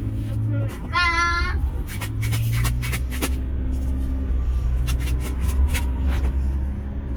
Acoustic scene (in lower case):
car